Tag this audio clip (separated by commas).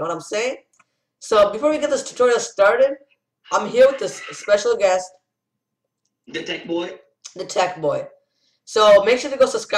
Speech